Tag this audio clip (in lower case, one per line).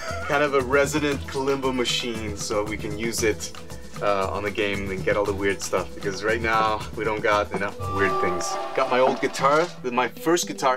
music
speech